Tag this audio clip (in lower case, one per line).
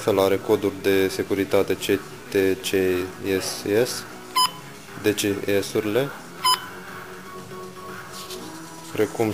music
speech